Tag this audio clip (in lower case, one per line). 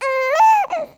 crying
human voice